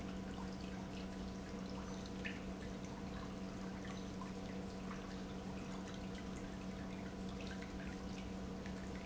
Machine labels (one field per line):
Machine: pump